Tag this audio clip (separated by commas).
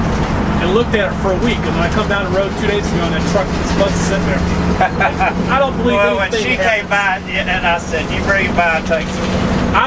Speech, Bus, Vehicle